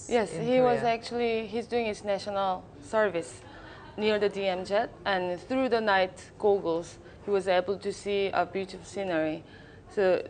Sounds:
Female speech

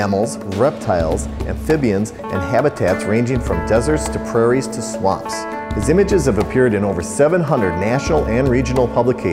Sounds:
Speech, Music

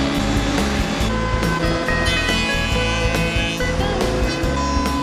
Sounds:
Music

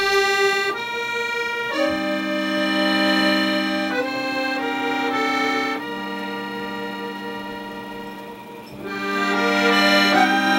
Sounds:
Accordion, Music

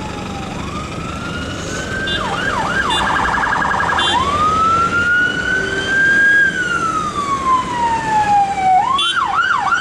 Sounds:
Emergency vehicle, Police car (siren), Siren, Ambulance (siren)

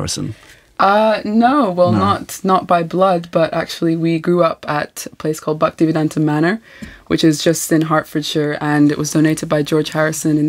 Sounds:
Radio, Speech

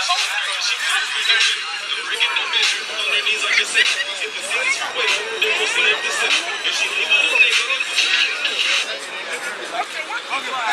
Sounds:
outside, urban or man-made, Music, Speech

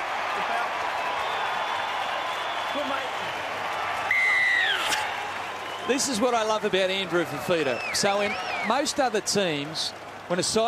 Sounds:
Speech

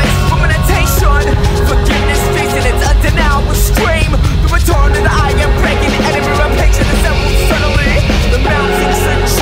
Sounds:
Music

